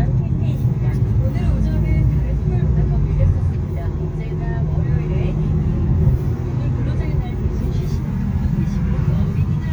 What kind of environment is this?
car